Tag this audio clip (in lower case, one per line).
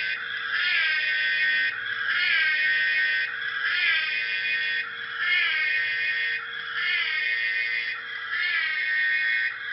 siren